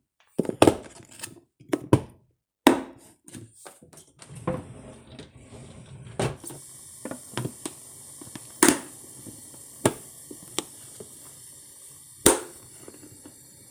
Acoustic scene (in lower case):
kitchen